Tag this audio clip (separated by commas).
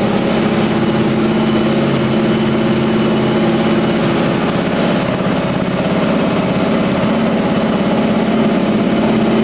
Heavy engine (low frequency), Idling, Engine